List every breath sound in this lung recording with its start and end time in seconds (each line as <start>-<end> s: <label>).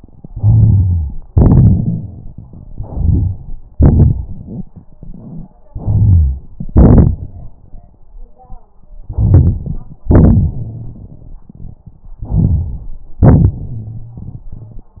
0.24-1.12 s: inhalation
1.31-2.20 s: exhalation
2.71-3.40 s: inhalation
3.74-5.52 s: exhalation
5.69-6.45 s: inhalation
6.60-7.61 s: exhalation
9.06-9.98 s: inhalation
10.09-12.11 s: exhalation
12.24-13.05 s: inhalation
13.24-15.00 s: exhalation